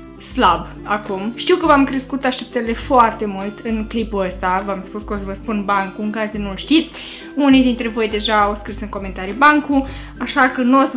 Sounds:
Speech, Music

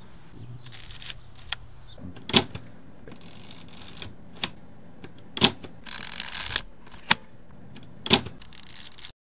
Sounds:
Single-lens reflex camera

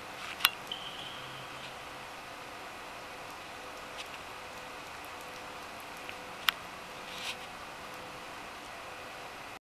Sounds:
Raindrop

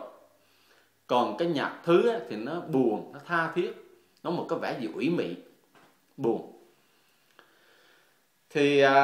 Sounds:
Speech

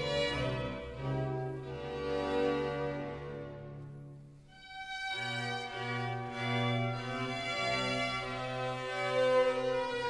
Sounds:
Organ, Music

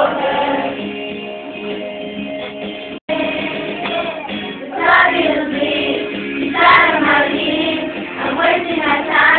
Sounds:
Child singing, Music

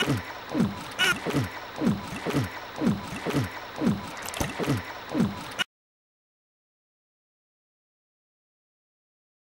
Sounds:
Gurgling

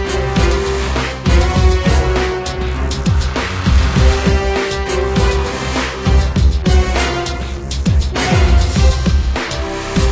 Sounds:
Music

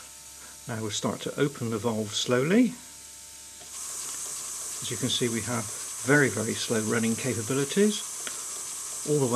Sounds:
Sizzle

